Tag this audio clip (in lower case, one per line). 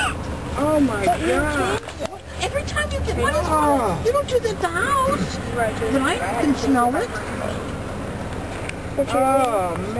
speech